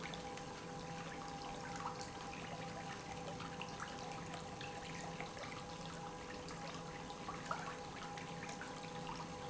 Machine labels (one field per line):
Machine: pump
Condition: normal